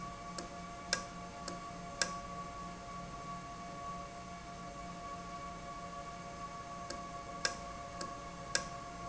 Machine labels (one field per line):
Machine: valve